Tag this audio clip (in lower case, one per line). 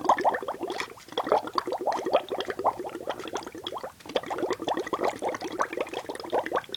water
liquid